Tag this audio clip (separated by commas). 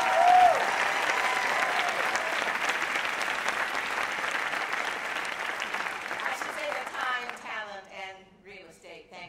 monologue, Speech, Female speech